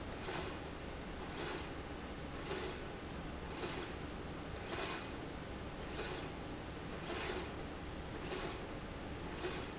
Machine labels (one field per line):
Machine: slide rail